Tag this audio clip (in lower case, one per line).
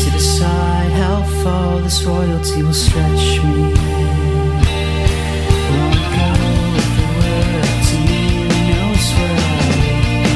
music
progressive rock